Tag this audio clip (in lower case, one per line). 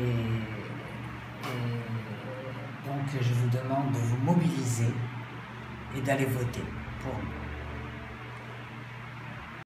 speech
music